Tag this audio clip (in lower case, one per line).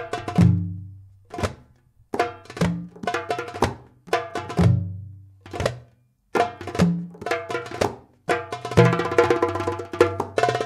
music